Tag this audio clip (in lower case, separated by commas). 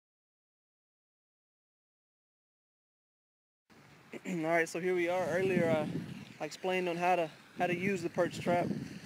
silence, outside, rural or natural